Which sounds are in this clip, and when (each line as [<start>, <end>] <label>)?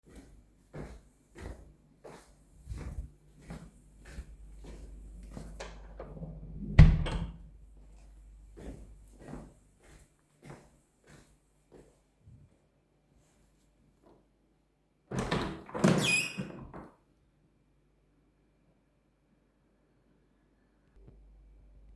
[0.00, 5.59] footsteps
[6.77, 7.41] door
[8.54, 12.48] footsteps
[15.05, 17.21] window